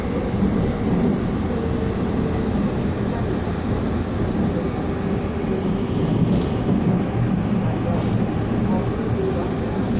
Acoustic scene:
subway train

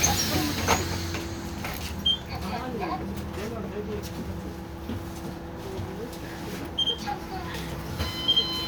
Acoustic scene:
bus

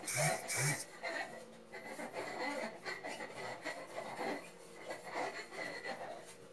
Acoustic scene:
kitchen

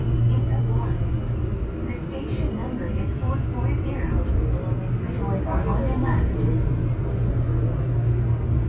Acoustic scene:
subway train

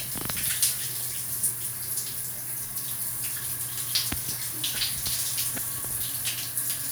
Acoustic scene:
restroom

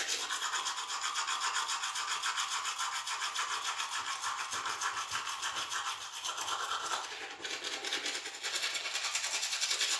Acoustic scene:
restroom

